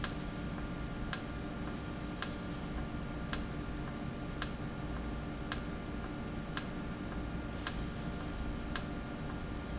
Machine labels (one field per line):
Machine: valve